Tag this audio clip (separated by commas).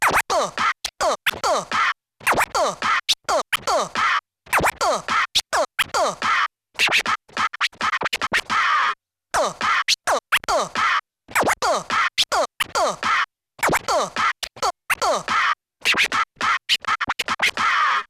Scratching (performance technique), Musical instrument, Music